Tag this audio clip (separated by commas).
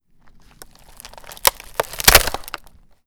Wood